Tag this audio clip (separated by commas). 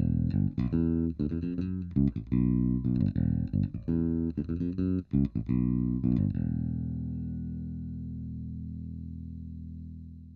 Music